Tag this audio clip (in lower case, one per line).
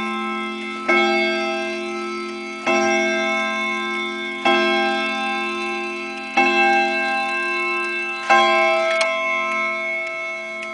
tick-tock